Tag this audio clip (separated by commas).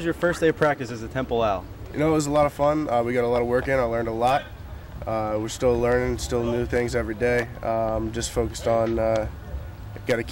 Speech